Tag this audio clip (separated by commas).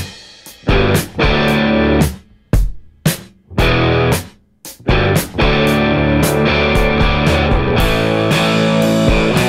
Music